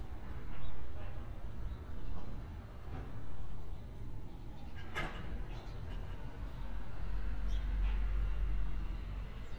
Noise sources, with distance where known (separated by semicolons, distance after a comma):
background noise